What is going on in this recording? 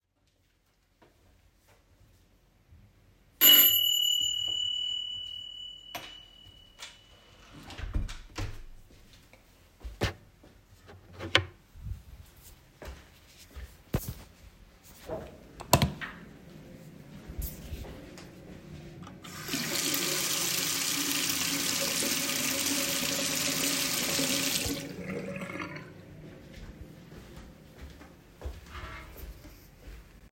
Bell ringed, I opened the door,Then went to the bathroom and after turning on the lights I turned on the water, I then turned the water off and went out of the bathroom